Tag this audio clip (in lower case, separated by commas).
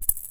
rattle (instrument), music, percussion, musical instrument